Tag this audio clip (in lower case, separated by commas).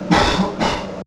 cough, respiratory sounds, human voice